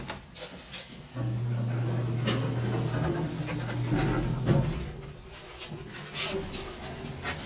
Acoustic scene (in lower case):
elevator